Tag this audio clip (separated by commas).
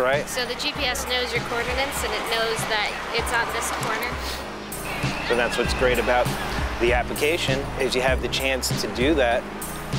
Music, Speech